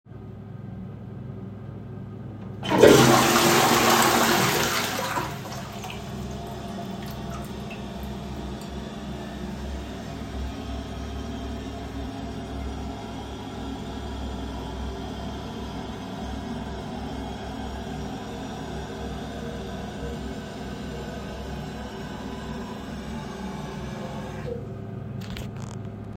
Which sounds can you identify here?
toilet flushing